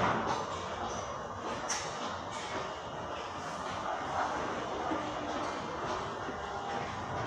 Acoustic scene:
subway station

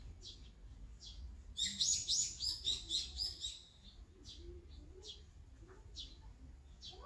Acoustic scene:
park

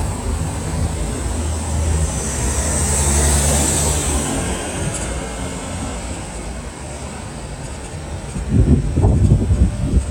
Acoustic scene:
street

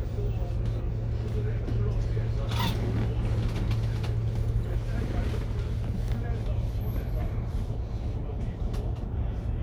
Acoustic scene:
bus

